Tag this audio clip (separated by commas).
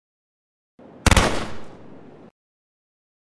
Gunshot